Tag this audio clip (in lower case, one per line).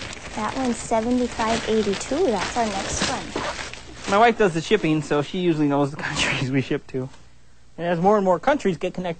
inside a small room
speech